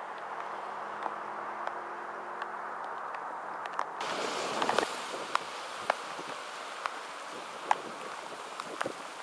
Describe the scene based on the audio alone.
It's raining outside and the drops are rattling against the leaves around, which starts slowly then quickly speeds up